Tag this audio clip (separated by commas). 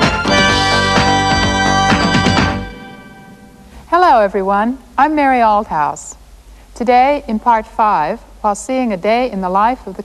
Music, Speech